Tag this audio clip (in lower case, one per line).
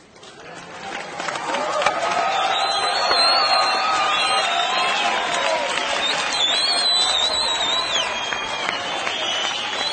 whistling